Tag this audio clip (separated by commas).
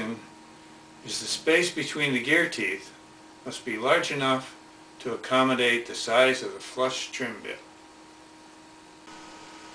Speech